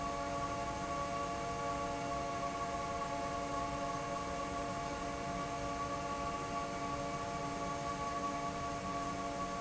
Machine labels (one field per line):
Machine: fan